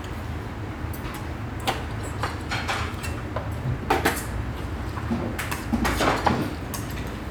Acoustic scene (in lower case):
restaurant